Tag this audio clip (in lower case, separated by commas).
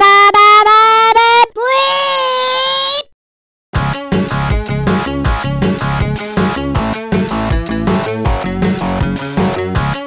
speech, music